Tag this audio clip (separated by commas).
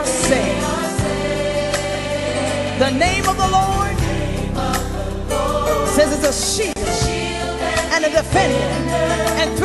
Music, Gospel music